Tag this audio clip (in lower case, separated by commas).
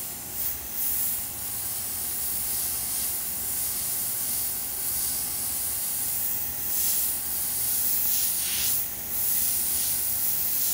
inside a small room, steam